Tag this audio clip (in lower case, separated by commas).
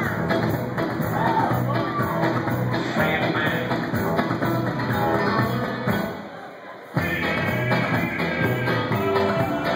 music, singing